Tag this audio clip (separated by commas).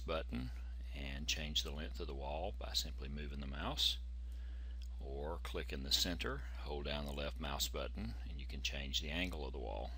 Speech